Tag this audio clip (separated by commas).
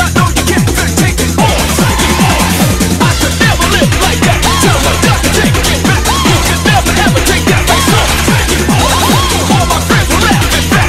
Music, Techno